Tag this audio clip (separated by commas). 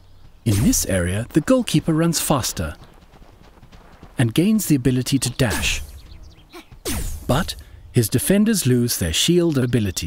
Speech